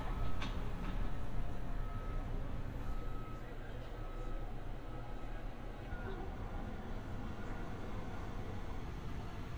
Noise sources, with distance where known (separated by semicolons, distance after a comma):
reverse beeper, far